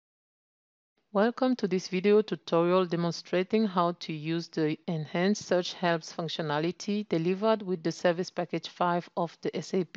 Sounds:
speech

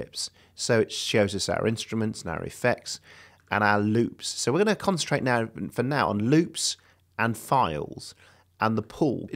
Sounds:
speech

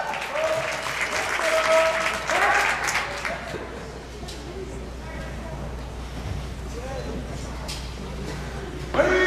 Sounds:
speech

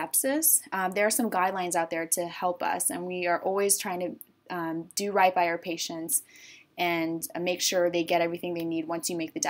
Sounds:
speech

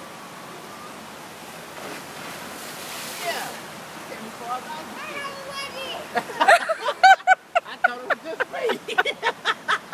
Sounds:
speech

